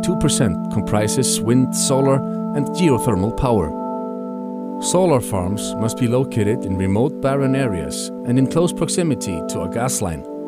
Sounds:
Music, Speech

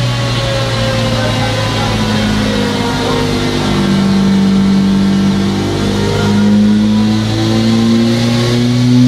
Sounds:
Speech

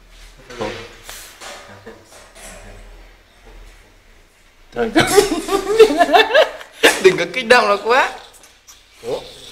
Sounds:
Hiss

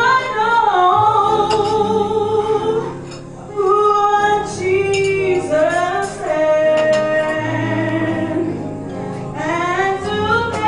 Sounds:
Music, Female singing

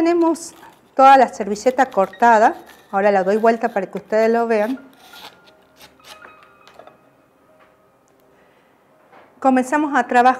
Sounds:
Music, Speech

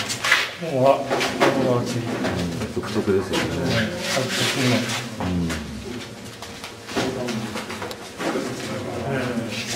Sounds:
Speech

